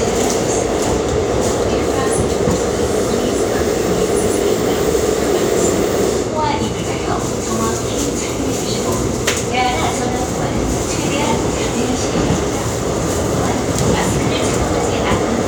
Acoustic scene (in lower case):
subway train